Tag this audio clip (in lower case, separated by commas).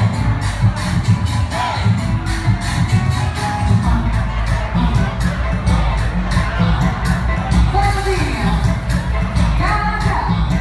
speech, music